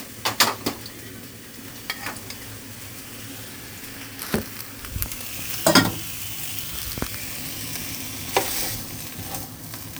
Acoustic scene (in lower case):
kitchen